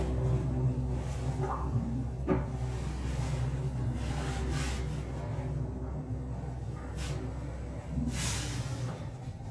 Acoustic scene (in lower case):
elevator